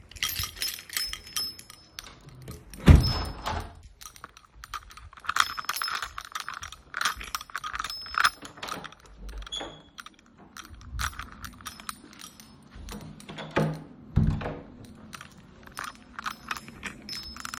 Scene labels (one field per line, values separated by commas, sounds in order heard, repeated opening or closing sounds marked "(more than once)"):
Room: bedroom, kitchen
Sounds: keys, window, door (more than once)